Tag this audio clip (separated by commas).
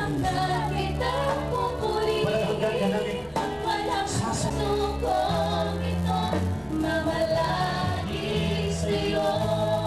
Music, Dance music, Speech